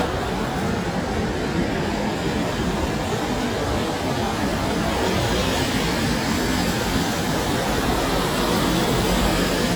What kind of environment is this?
street